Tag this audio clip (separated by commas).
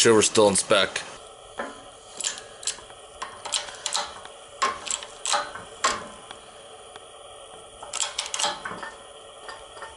Speech, Vehicle